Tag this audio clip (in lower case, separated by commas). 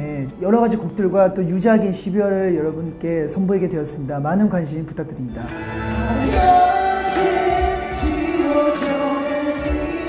music, speech